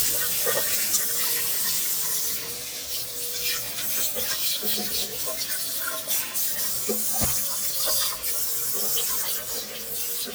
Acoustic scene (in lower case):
restroom